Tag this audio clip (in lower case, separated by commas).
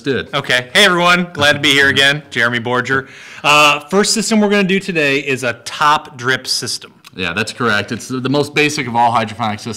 speech